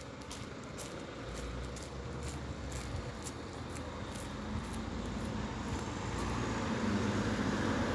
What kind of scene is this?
residential area